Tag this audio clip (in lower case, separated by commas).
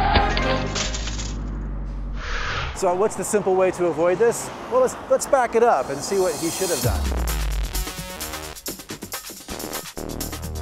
vehicle, music, bicycle, speech